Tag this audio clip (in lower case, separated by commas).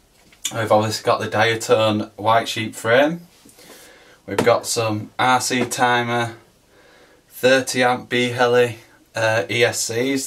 speech